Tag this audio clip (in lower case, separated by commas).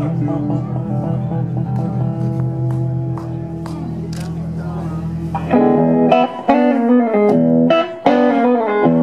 music